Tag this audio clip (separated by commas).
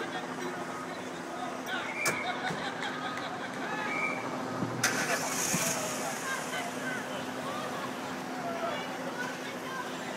Hubbub, Traffic noise, Speech, Car, Vehicle